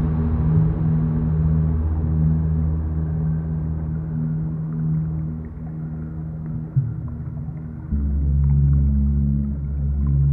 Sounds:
ambient music, music, electronic music

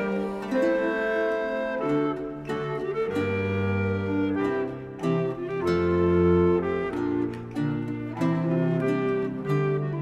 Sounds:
music

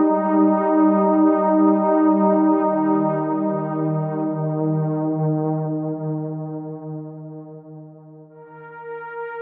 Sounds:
music

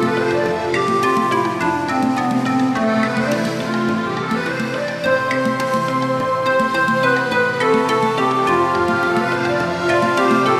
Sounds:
music

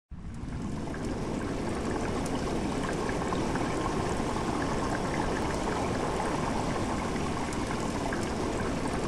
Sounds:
trickle

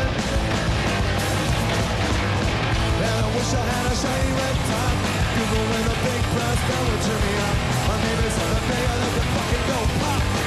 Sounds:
music

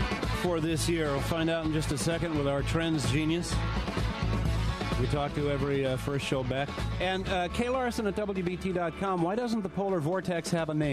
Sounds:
music, speech

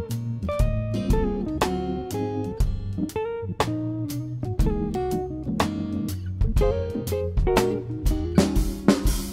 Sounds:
musical instrument, guitar, acoustic guitar, electric guitar, plucked string instrument, music, strum

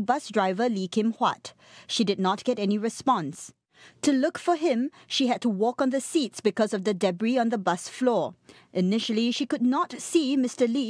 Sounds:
speech

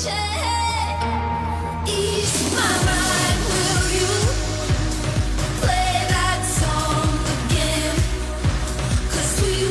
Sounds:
singing

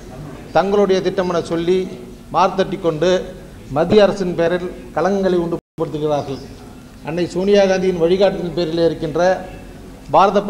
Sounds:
narration, speech, male speech

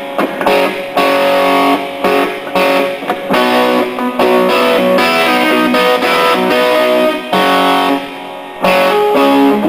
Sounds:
playing electric guitar, music, strum, electric guitar, musical instrument, guitar, plucked string instrument

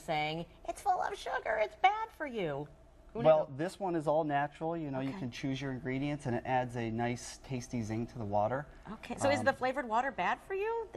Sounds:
speech

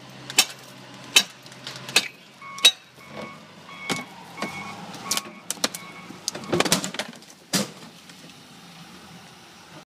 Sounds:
door, slam

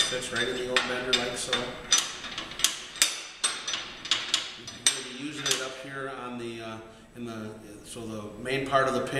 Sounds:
speech

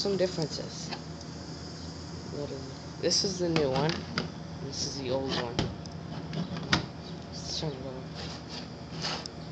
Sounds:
speech

